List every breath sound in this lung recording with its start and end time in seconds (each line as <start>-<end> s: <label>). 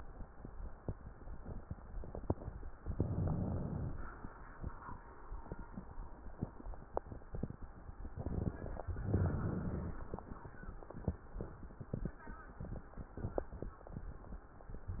2.76-4.06 s: inhalation
8.82-10.12 s: inhalation
14.83-15.00 s: inhalation